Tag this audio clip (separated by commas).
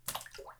splatter, Water, Liquid